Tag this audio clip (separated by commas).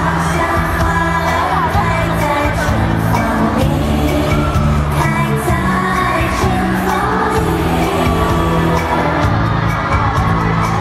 Music